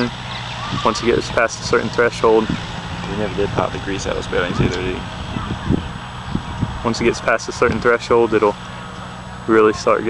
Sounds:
wind noise (microphone), speech

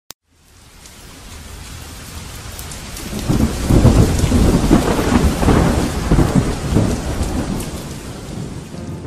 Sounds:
rain, music, thunderstorm

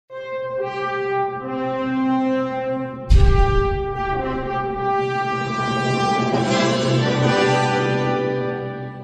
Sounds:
trombone, brass instrument

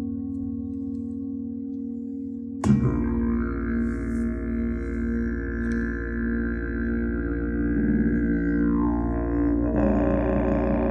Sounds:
music

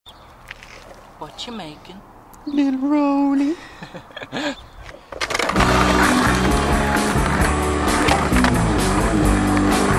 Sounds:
skateboard

